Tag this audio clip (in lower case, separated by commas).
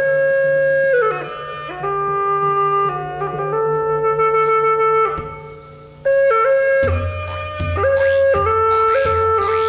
traditional music, music